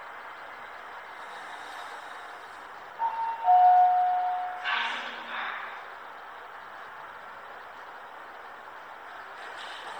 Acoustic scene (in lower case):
elevator